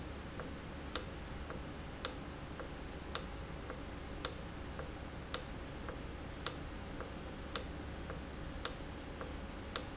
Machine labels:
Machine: valve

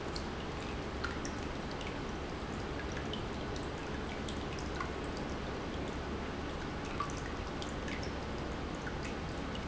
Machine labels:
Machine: pump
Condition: normal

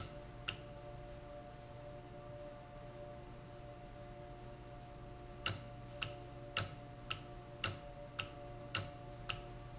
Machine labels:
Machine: valve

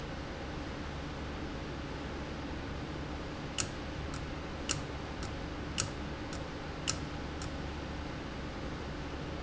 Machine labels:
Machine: valve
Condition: abnormal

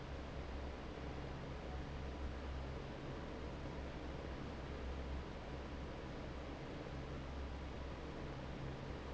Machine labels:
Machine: fan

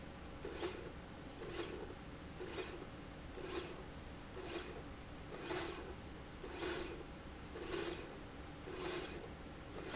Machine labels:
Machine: slide rail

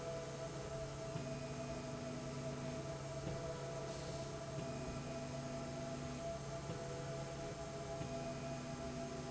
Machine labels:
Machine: slide rail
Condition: normal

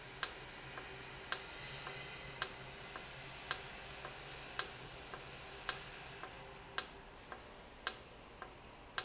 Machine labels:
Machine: valve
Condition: normal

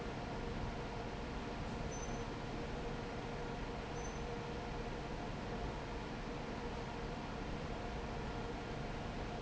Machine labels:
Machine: fan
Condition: normal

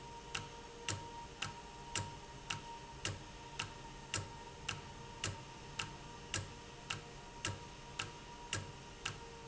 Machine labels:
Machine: valve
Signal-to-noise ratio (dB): 6 dB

